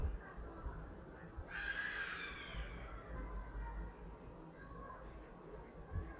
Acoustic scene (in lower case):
residential area